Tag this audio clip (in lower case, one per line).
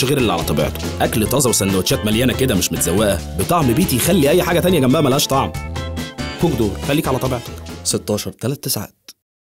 speech
music